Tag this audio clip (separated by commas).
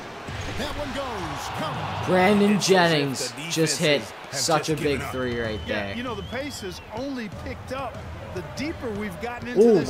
Basketball bounce